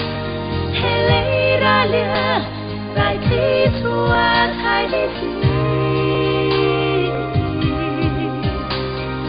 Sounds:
singing

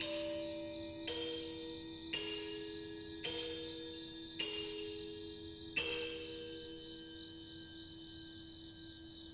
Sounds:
music
musical instrument

